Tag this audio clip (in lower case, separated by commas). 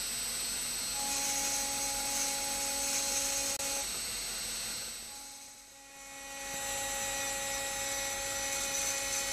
clink